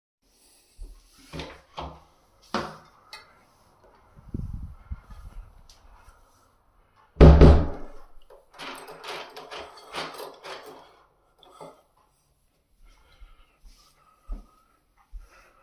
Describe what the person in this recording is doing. I was standing in front of the door. I closed the door and turned the keys